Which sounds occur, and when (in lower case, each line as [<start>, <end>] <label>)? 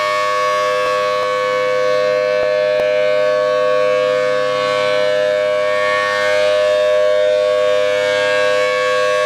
[0.00, 9.25] siren